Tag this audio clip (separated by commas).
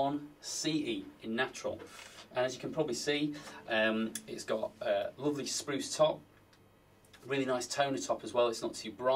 Speech